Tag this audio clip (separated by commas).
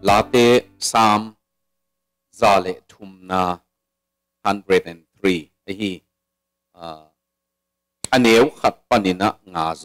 Speech